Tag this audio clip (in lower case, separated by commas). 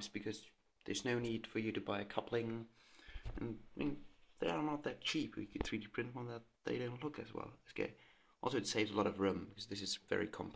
speech